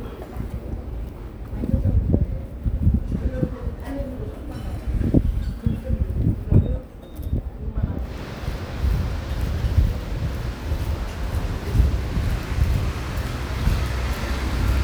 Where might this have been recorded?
in a residential area